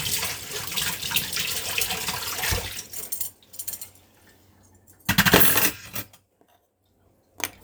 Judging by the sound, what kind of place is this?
kitchen